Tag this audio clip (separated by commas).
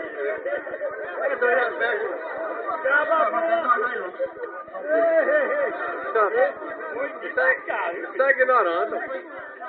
Speech